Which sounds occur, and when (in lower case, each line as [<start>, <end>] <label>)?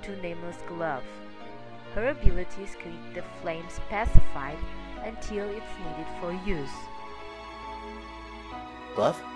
[0.00, 1.18] female speech
[0.00, 9.35] music
[1.90, 4.61] female speech
[2.20, 2.48] wind noise (microphone)
[3.76, 3.84] wind noise (microphone)
[4.04, 4.16] wind noise (microphone)
[4.58, 4.62] wind noise (microphone)
[4.91, 6.85] female speech
[8.92, 9.21] man speaking